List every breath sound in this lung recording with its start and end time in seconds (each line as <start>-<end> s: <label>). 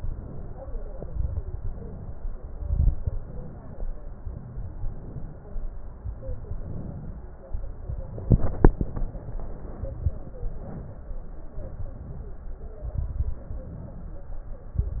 0.00-0.72 s: inhalation
0.93-1.52 s: exhalation
0.93-1.52 s: crackles
1.58-2.24 s: inhalation
2.53-3.19 s: exhalation
2.53-3.19 s: crackles
4.77-5.43 s: inhalation
5.51-6.17 s: exhalation
6.56-7.22 s: inhalation
7.54-8.21 s: exhalation
11.55-12.54 s: inhalation
12.83-13.49 s: exhalation
12.83-13.49 s: crackles
13.66-14.33 s: inhalation